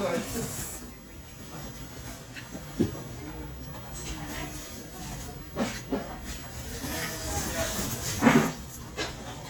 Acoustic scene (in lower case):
restaurant